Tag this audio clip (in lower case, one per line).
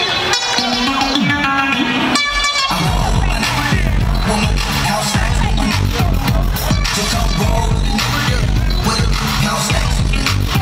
music